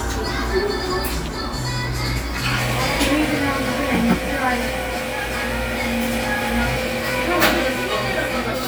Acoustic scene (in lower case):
cafe